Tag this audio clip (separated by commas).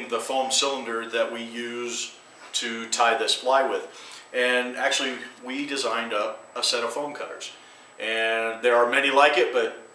Speech